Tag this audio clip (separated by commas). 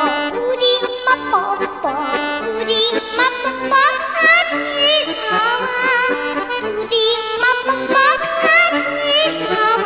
child singing